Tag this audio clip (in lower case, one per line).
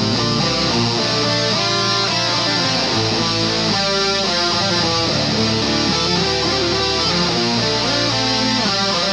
playing electric guitar
electric guitar
strum
music
plucked string instrument
guitar
musical instrument
acoustic guitar